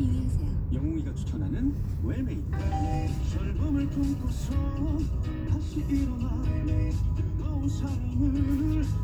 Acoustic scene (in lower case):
car